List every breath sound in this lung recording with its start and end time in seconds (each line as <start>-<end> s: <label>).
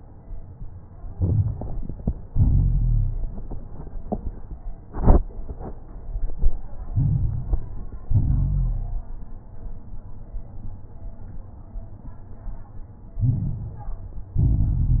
1.08-2.22 s: inhalation
1.08-2.22 s: crackles
2.24-3.38 s: exhalation
2.24-3.38 s: crackles
6.88-8.02 s: inhalation
6.88-8.02 s: crackles
8.06-9.20 s: exhalation
8.06-9.20 s: crackles
13.15-14.29 s: inhalation
13.15-14.29 s: crackles
14.33-15.00 s: exhalation
14.33-15.00 s: crackles